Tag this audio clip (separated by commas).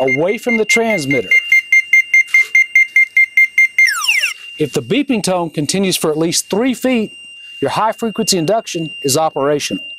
Speech, Alarm